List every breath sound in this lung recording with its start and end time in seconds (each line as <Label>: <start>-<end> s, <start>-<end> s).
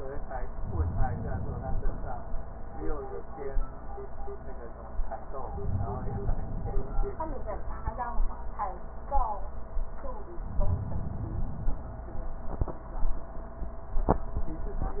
Inhalation: 0.56-2.29 s, 5.51-7.24 s, 10.39-12.05 s